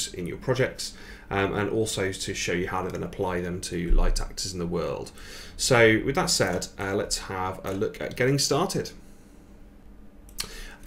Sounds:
speech

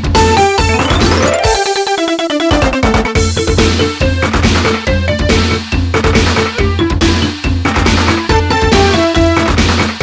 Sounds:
music, theme music

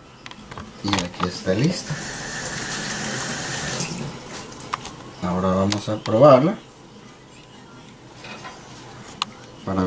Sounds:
speech, inside a small room, fill (with liquid)

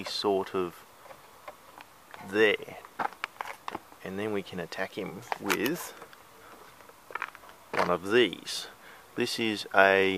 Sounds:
speech, outside, urban or man-made

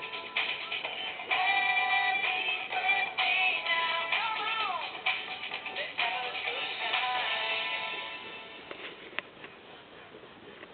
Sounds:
male singing, music, female singing

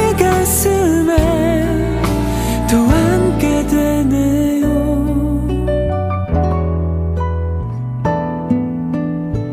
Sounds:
music, tender music

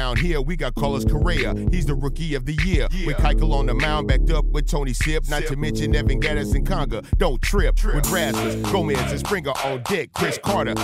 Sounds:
hip hop music, music

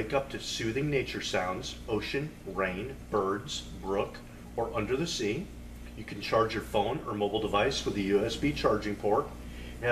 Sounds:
speech

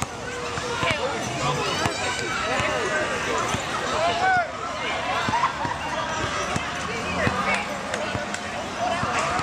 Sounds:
speech

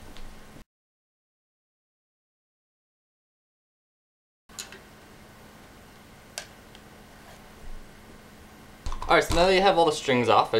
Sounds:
speech

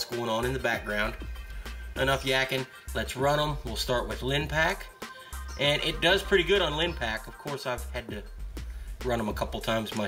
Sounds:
music, speech

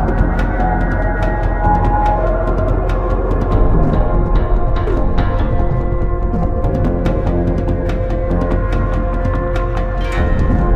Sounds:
music, soundtrack music

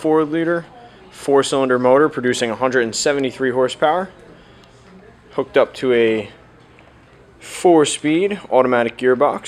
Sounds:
speech

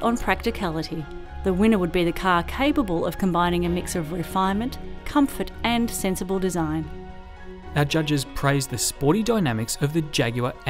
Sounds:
music, speech

